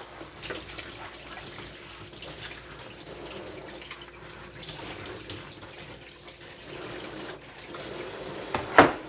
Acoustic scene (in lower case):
kitchen